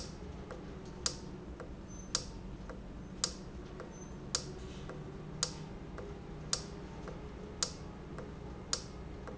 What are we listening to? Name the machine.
valve